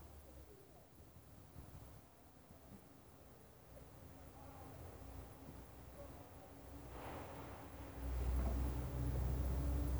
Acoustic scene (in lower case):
residential area